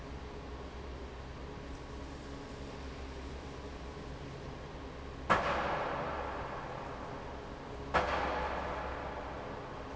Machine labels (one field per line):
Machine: fan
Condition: normal